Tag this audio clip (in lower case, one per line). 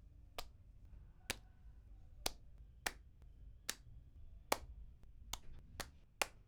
hands